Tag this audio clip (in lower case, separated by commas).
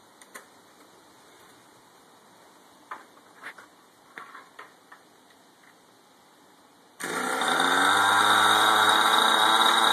medium engine (mid frequency)